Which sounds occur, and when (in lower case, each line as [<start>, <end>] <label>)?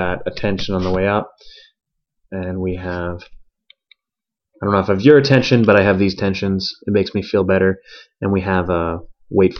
[3.17, 3.34] surface contact
[7.84, 8.18] breathing
[9.54, 9.55] clicking